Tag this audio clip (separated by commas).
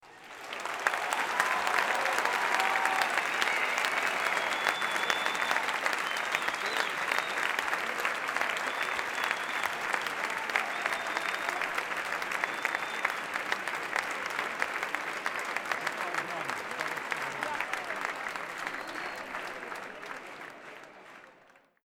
Applause, Human group actions